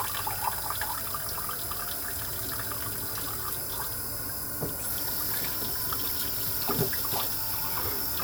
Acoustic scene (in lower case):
kitchen